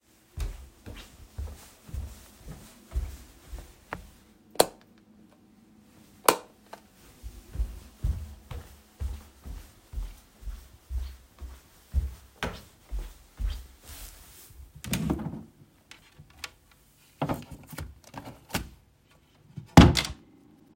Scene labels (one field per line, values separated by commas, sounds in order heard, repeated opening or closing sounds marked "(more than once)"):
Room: office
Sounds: footsteps, light switch, wardrobe or drawer (more than once)